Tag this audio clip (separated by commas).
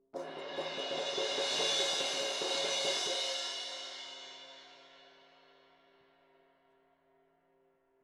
Music, Percussion, Musical instrument, Cymbal, Crash cymbal